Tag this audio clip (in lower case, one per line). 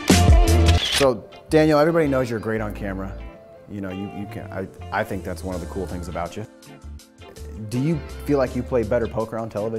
music
speech